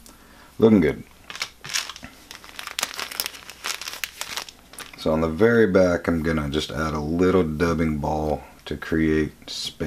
Someone is speaking and then crinkling of paper and more speaking